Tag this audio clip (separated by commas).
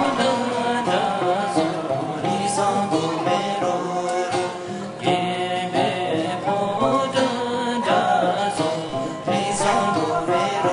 Music, Vocal music, outside, urban or man-made